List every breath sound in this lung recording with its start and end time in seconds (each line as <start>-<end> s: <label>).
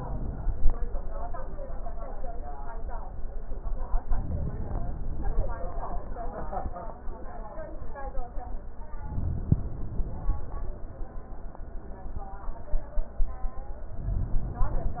4.08-5.58 s: inhalation
9.03-10.53 s: inhalation